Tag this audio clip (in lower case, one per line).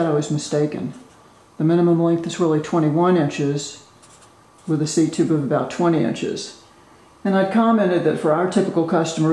speech